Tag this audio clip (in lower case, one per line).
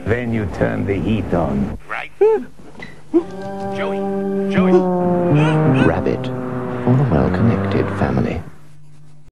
speech
music